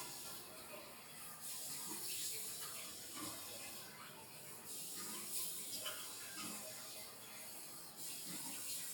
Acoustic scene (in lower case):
restroom